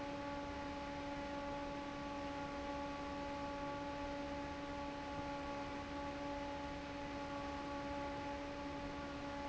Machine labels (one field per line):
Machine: fan